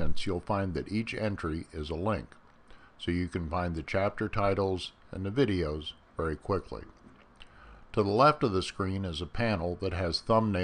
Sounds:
speech

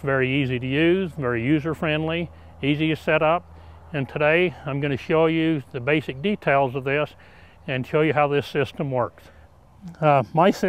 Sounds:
speech

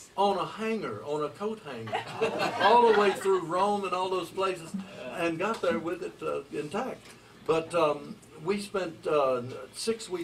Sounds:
speech

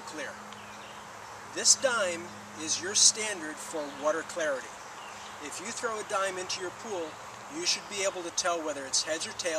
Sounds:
speech

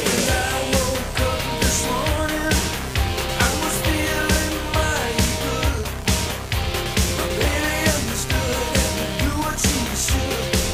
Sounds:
music

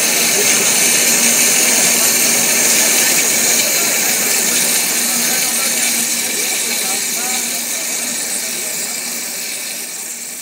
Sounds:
speech

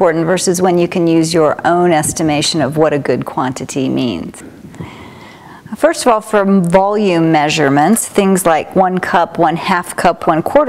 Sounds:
speech

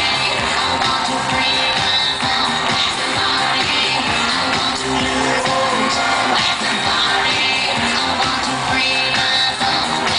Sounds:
music
disco

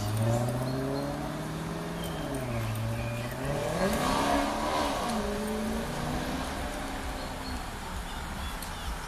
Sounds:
speech

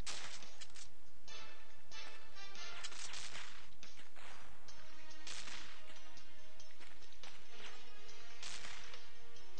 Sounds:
music

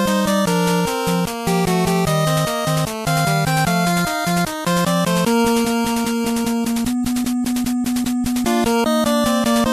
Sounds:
music
theme music

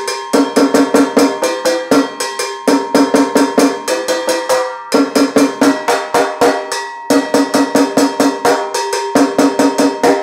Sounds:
playing timbales

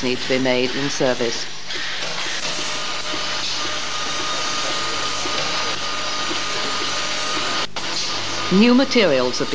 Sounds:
speech
inside a large room or hall

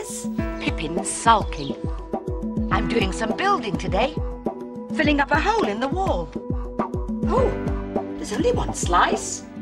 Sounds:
music
speech

